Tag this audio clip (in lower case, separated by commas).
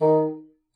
musical instrument, music, wind instrument